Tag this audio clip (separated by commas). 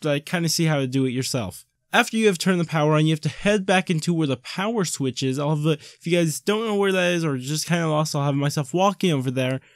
Speech